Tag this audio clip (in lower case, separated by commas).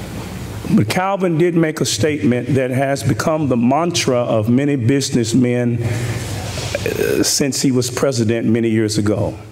man speaking, monologue, speech